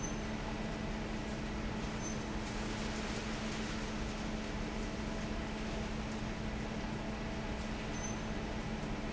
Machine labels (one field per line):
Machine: fan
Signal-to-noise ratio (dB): -6 dB